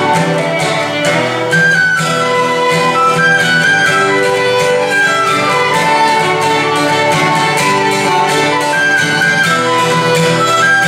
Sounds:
Musical instrument, Violin, Plucked string instrument, Guitar, Music

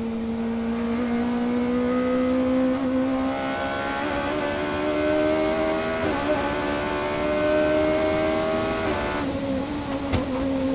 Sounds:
Vehicle, Motor vehicle (road), Car

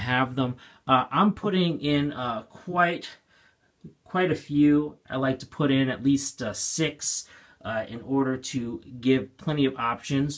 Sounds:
Speech

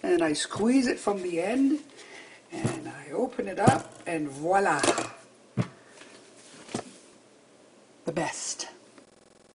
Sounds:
Speech

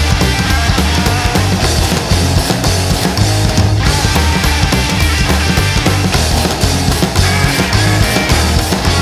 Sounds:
Progressive rock, Music

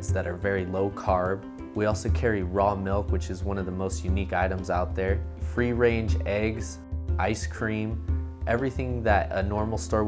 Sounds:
Music, Speech

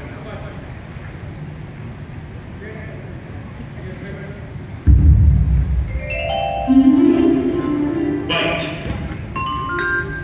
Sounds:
Speech, Percussion, Music, Tubular bells

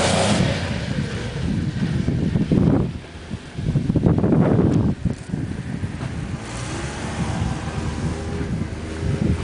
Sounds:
outside, rural or natural, Vehicle

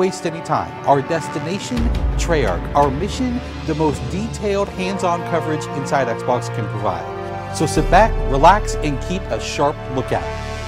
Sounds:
Music, Speech

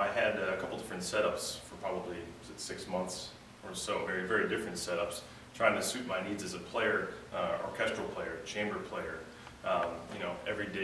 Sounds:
Speech

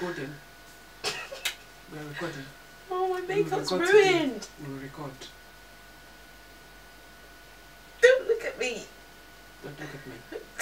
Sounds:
Speech

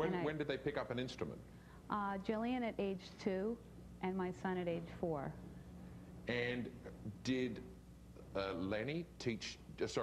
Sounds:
Speech

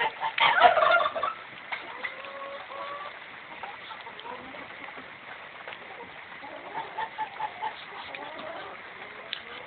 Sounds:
Bird, Duck

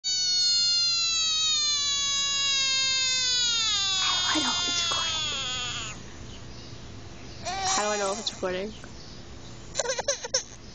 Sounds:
Speech

